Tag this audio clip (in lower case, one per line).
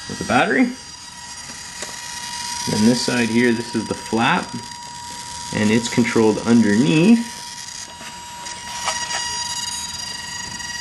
speech